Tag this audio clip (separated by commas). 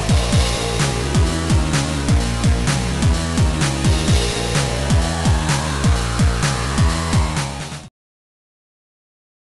Video game music, Music, Exciting music